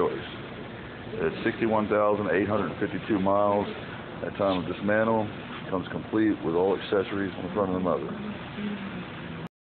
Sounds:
speech

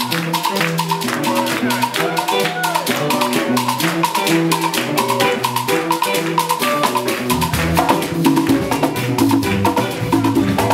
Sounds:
salsa music, music

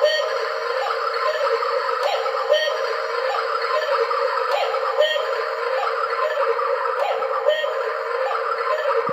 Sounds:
tick-tock, tick

